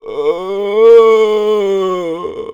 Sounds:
human voice

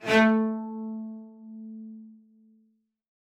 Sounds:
musical instrument, bowed string instrument, music

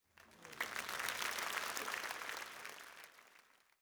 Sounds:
human group actions, applause

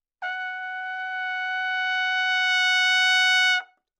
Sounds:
music, trumpet, musical instrument, brass instrument

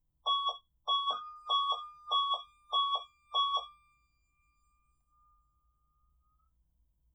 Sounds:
motor vehicle (road), alarm, bus, vehicle

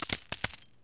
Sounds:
home sounds, coin (dropping)

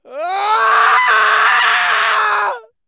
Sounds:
screaming, human voice

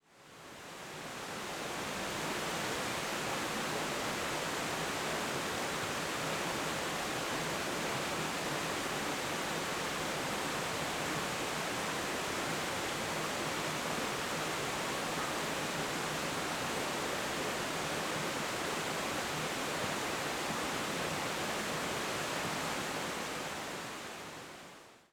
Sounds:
liquid, stream, water

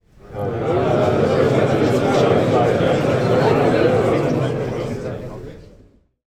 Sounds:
conversation, human group actions, speech, human voice, crowd

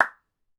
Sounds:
clapping, hands

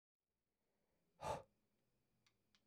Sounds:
respiratory sounds, breathing

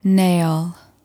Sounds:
speech, woman speaking, human voice

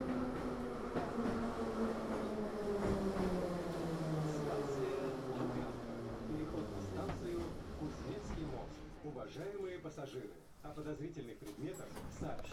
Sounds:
rail transport, vehicle, subway

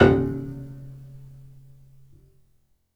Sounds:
keyboard (musical), music, musical instrument, piano

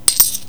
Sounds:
coin (dropping), domestic sounds

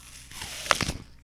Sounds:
mastication

